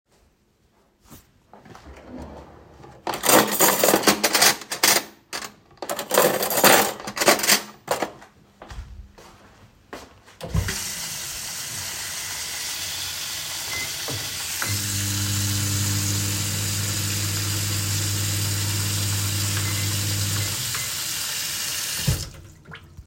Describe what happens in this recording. I opened a kitchen drawer and took out cutlery, causing a clattering sound. I then turned on the tap and simultaneously started the microwave. The running water and microwave sounds overlapped for several seconds before both were turned off.